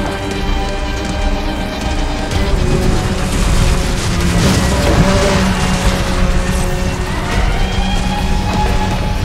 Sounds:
Music

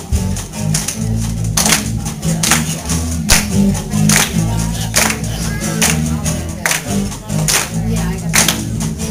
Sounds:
Music, Speech

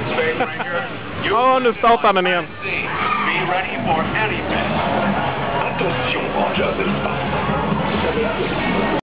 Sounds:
Music, Speech

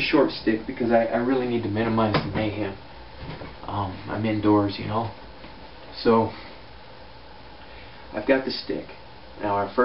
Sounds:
inside a small room, Speech

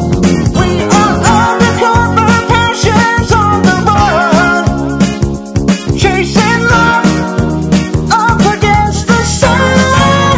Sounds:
Music, Funny music

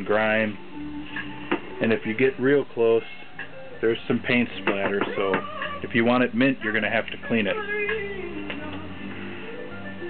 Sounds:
Musical instrument, Guitar, Music, Speech

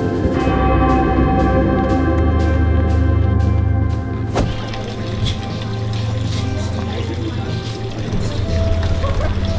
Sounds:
outside, urban or man-made, Speech, Music

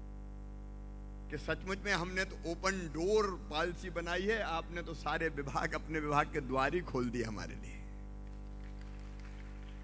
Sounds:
Narration, Male speech, Speech

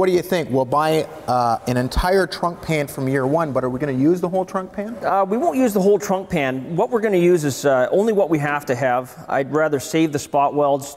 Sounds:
Speech

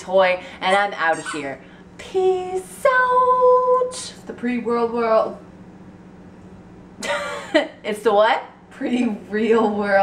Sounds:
inside a large room or hall, Speech

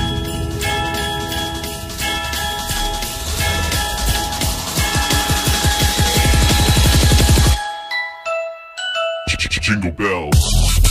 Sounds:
Drum and bass, Speech, Music

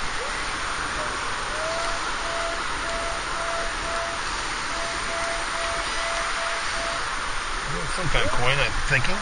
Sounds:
Speech

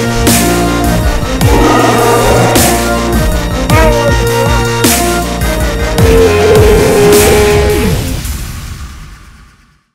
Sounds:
Dubstep, Music, Electronic music

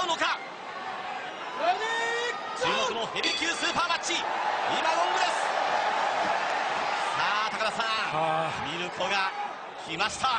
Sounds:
Speech

